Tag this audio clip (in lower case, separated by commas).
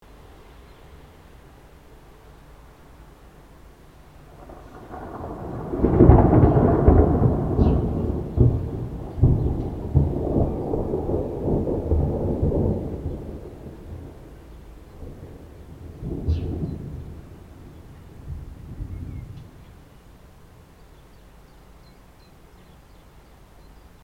rain, water, thunder, thunderstorm